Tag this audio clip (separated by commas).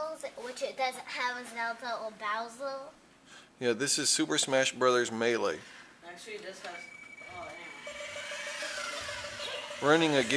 Music, Speech